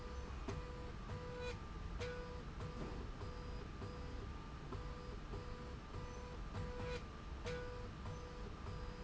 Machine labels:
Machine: slide rail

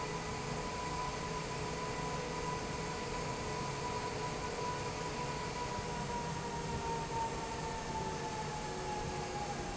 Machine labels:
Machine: fan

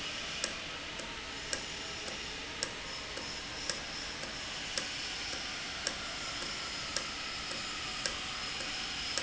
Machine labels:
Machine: valve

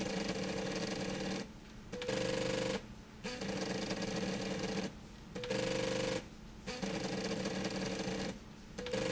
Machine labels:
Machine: slide rail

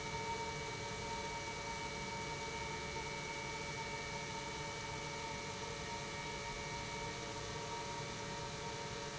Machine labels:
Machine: pump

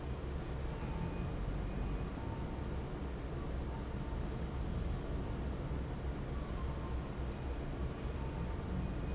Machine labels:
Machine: fan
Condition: normal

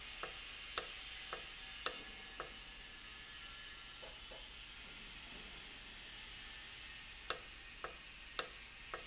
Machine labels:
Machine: valve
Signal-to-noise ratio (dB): 6 dB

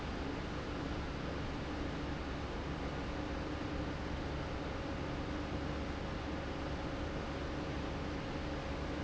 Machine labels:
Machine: fan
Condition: abnormal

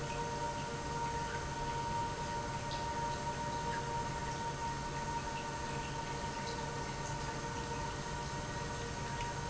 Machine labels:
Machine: pump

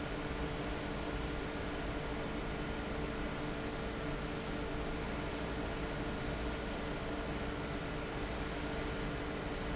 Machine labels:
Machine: fan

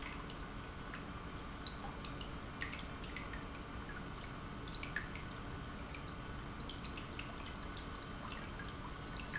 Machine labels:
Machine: pump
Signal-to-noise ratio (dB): 6 dB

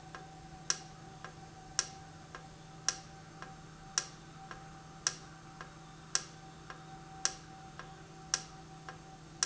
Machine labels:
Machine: valve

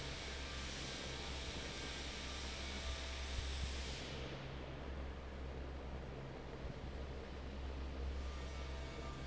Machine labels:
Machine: fan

